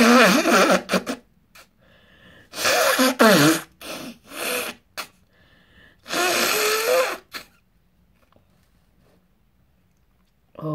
A person is blowing hard through the nose or mouth